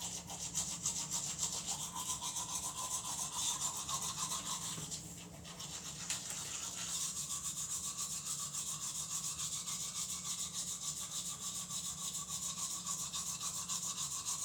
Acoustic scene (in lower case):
restroom